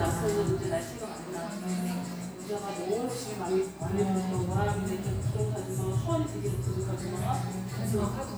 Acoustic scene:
cafe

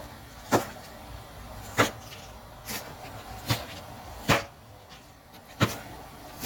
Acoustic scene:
kitchen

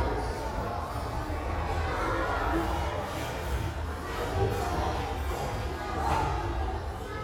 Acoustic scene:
restaurant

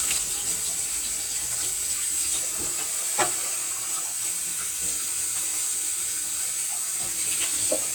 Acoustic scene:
kitchen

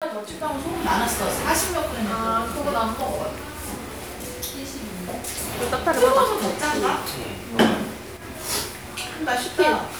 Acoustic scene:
crowded indoor space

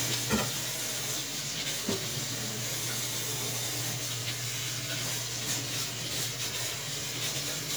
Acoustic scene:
kitchen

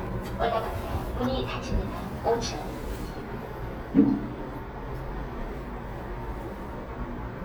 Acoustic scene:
elevator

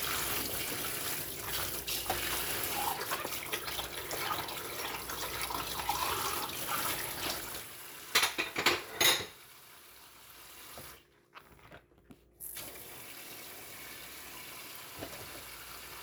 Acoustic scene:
kitchen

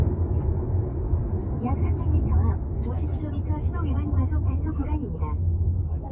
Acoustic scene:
car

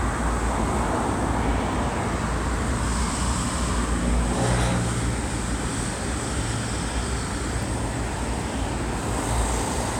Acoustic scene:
street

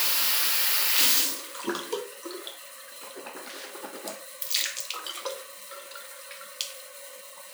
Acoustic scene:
restroom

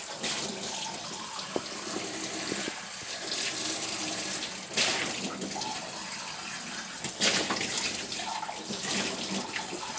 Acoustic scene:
kitchen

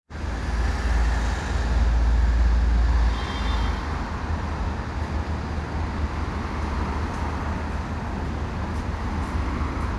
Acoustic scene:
residential area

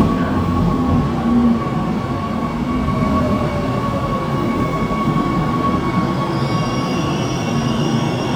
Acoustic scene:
subway station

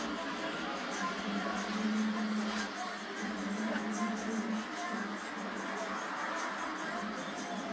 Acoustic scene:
bus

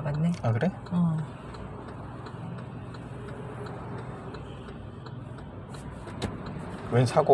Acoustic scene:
car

